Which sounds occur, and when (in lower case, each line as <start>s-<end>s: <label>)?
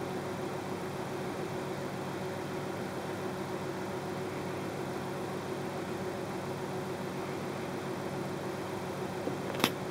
0.0s-9.9s: mechanisms
9.5s-9.8s: generic impact sounds